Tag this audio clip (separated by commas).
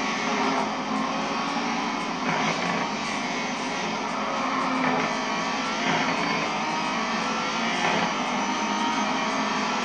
Car, Vehicle